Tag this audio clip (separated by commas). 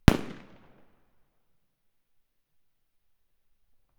Fireworks, Explosion